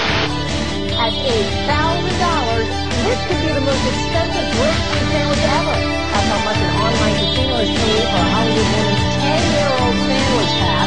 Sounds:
music, speech, funny music

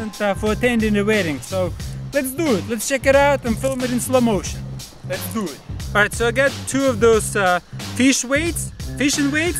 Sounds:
speech, music

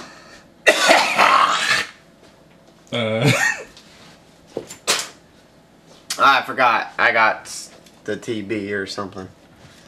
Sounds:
speech, inside a small room

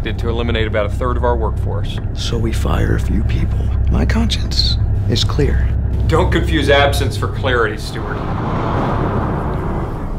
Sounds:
speech

